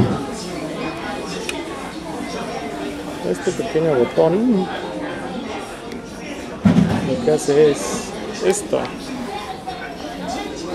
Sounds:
speech

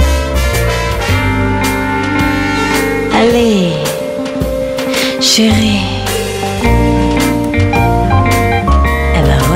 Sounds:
music, speech

